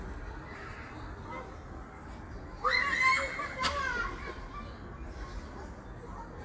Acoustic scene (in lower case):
park